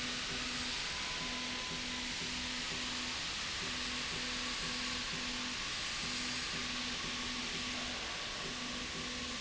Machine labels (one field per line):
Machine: slide rail